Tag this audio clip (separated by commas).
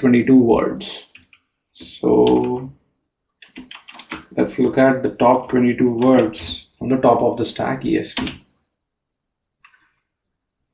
Speech